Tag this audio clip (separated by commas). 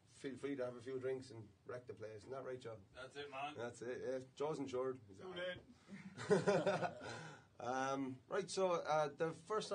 Speech